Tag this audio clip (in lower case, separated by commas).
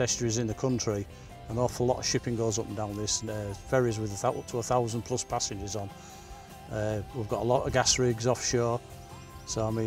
speech, music